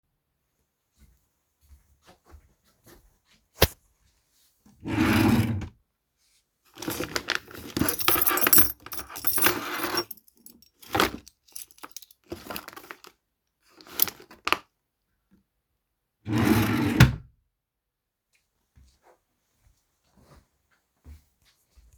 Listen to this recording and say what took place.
I walked opened the wardrobe searched my keychain a bit, after finding the keychain I closed the wardrobe and walked back.